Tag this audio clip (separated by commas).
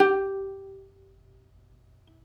Music, Plucked string instrument, Musical instrument